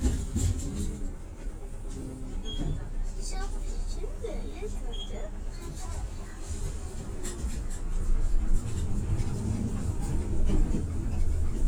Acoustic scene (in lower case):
bus